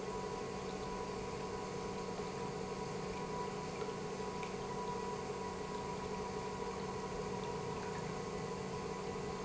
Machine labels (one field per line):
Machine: pump